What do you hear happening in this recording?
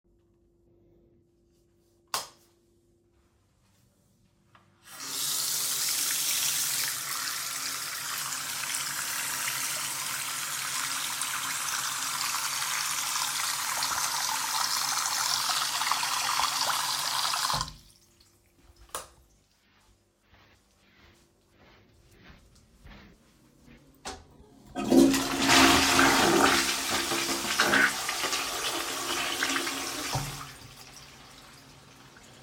I entered the bathroom and flipped the light switch on. I then turned on the tap and ran water for several seconds. I turned off the tap and flushed the toilet before leaving the room.